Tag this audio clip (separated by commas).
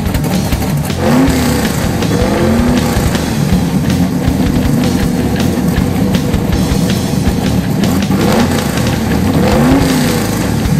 Music